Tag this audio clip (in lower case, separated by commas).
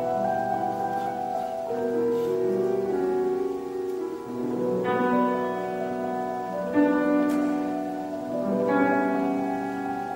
keyboard (musical), music, classical music, musical instrument, piano